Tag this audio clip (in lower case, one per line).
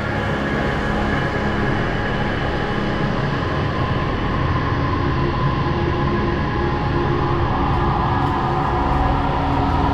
scary music
music